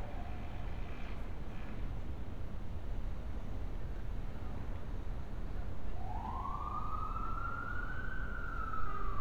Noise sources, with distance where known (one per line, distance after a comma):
engine of unclear size, far
car horn, far
siren, far